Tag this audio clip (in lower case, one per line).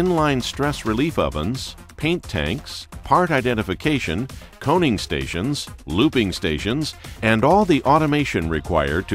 music
speech